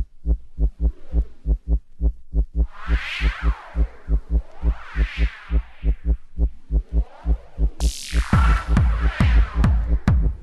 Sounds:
music
electronic music

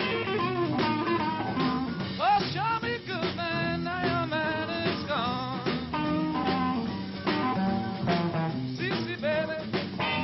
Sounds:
music

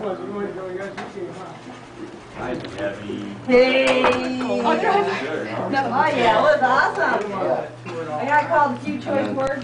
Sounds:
speech

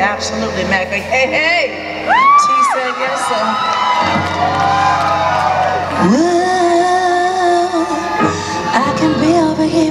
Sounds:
speech
music

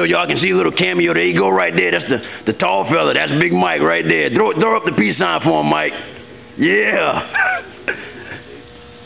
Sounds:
inside a large room or hall
speech

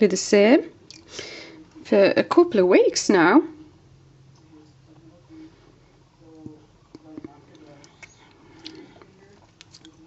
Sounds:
inside a small room
speech

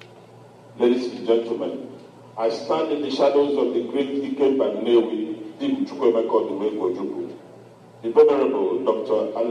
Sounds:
speech
male speech

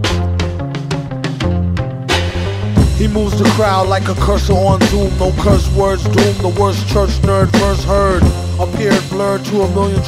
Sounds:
music

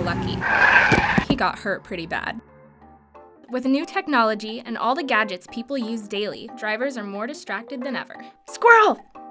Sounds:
speech

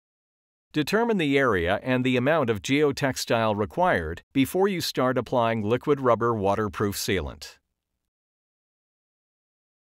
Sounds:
speech

